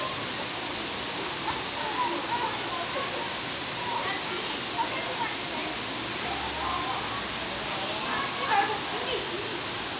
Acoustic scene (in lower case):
park